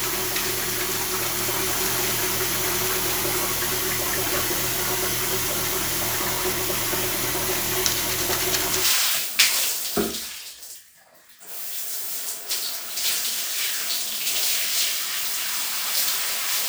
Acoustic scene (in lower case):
restroom